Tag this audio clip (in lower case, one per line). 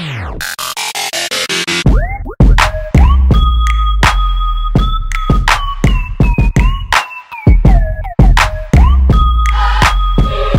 music